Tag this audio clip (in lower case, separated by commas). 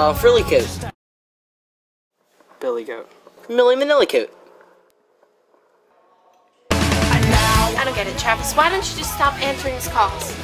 speech, music